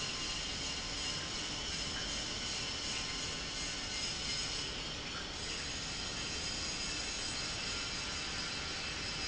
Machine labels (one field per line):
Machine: pump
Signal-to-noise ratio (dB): -6 dB